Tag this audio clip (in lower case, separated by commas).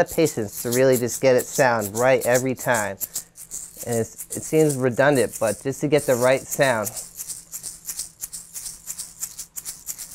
playing tambourine